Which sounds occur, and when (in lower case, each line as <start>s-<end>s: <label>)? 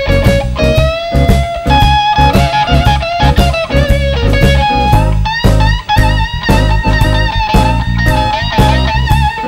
0.0s-9.4s: music